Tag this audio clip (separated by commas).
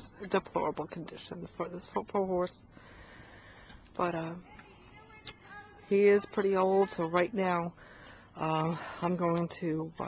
Speech